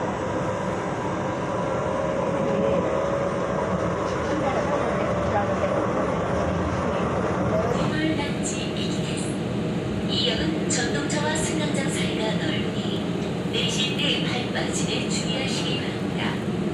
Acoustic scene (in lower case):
subway train